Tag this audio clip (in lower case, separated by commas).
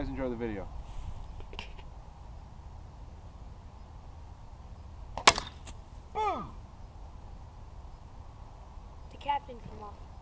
speech